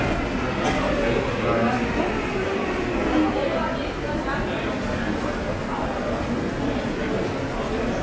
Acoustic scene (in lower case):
subway station